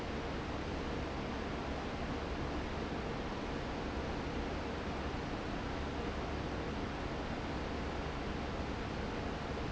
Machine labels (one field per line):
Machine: fan